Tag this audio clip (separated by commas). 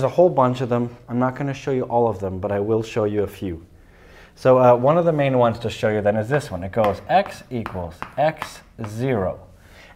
Speech